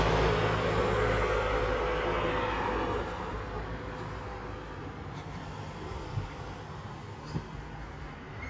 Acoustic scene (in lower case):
street